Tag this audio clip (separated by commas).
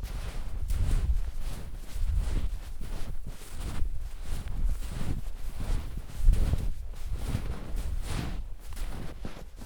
footsteps